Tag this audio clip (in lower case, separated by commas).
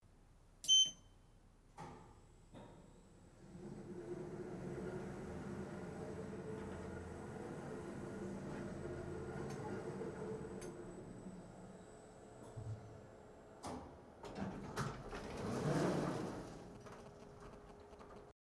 sliding door, door, domestic sounds